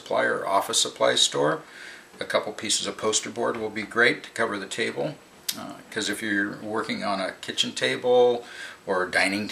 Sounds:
speech

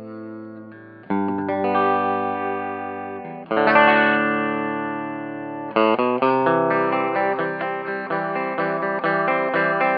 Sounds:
musical instrument
music
plucked string instrument
guitar

